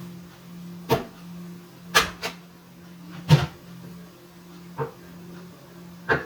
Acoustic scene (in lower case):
kitchen